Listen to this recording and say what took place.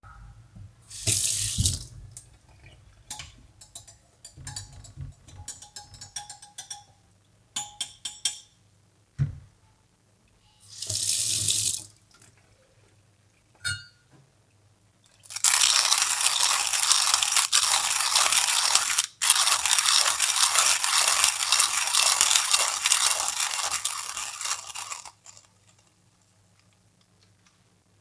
I rinsed off my french press, sat it on the counter and proceeded to grind coffee beans for my brew.